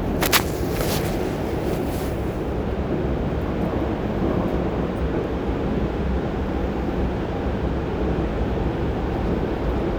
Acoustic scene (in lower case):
subway train